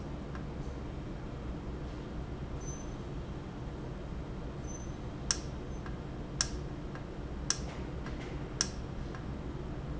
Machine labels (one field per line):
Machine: valve